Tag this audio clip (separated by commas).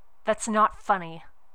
Speech, woman speaking, Human voice